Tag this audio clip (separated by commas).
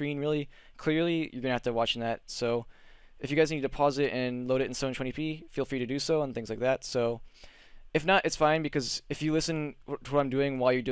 Speech